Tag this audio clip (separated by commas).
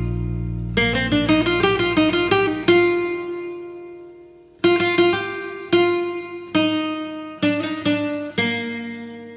Music, Zither